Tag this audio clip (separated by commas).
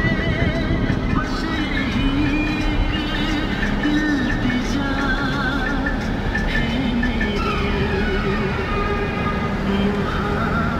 Music